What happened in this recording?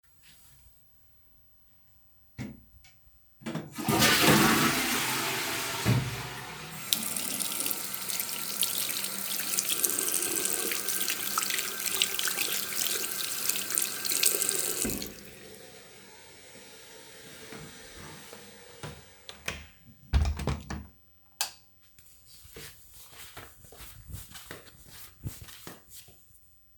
I closed the toilet lid, flushed the toilet, washed my hands, close the door and turn off the lamp